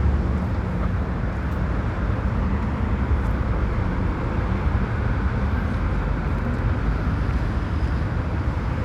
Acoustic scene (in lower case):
street